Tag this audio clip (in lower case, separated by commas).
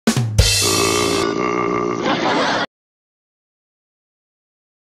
groan, music